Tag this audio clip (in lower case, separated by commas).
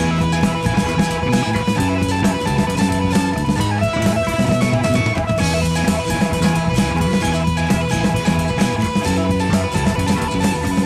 music